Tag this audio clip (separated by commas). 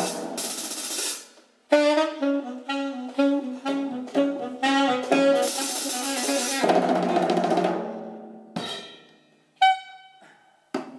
Musical instrument, Drum kit, Drum, Saxophone, Jazz, Hi-hat, Music